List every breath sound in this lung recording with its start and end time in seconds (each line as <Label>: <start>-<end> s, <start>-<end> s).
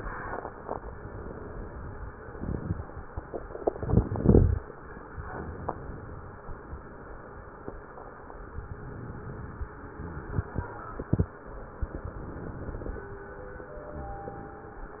Inhalation: 5.08-6.45 s, 8.61-9.98 s, 11.90-13.26 s